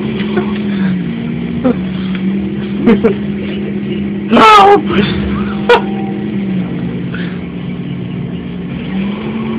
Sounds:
Speech

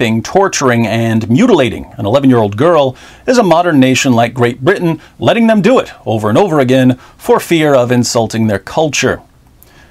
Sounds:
Speech

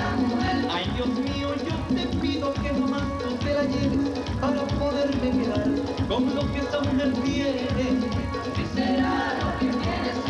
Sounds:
Middle Eastern music, Music

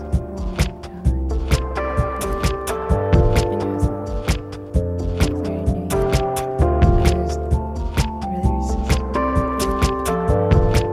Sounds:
Music

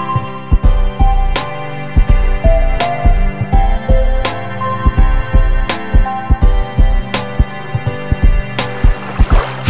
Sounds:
Music, Soundtrack music

